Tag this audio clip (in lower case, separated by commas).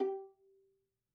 bowed string instrument, musical instrument, music